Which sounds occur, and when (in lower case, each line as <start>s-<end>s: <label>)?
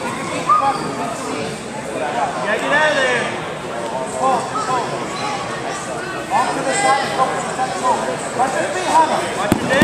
0.0s-0.5s: speech
0.0s-9.8s: crowd
0.4s-0.7s: human voice
0.6s-1.5s: man speaking
1.7s-3.3s: man speaking
3.6s-4.4s: man speaking
4.1s-4.4s: human voice
4.7s-4.8s: human voice
4.7s-5.7s: child speech
5.9s-8.1s: man speaking
8.3s-9.8s: man speaking
9.5s-9.8s: thud